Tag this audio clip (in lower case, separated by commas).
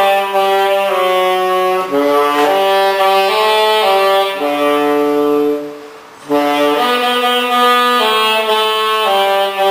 wind instrument, playing saxophone, trumpet, music, saxophone